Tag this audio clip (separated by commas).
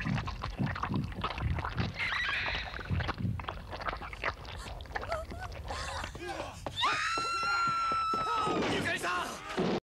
Speech